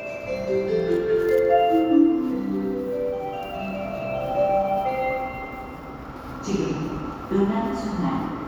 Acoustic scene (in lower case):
subway station